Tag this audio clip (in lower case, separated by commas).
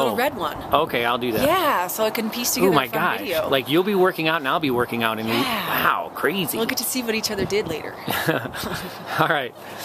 outside, rural or natural, speech